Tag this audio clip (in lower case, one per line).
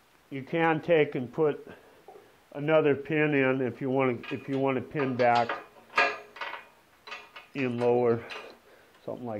speech